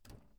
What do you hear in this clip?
wooden cupboard opening